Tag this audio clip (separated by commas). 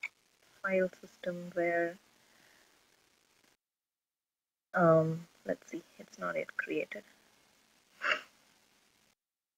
Speech, inside a small room